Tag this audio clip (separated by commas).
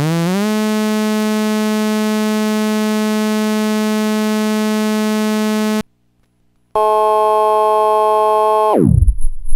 Music, Harmonic